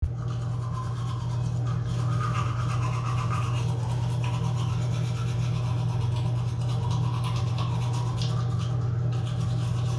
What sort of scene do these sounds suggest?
restroom